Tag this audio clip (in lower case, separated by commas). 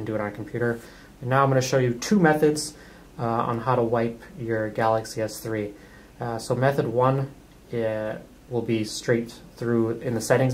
speech